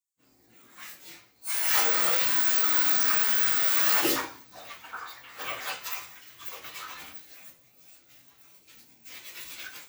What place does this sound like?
restroom